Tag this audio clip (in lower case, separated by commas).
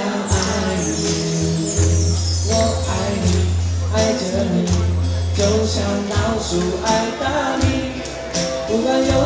singing, music, inside a large room or hall